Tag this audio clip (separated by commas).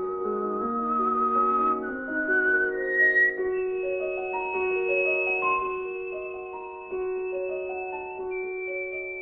Whistling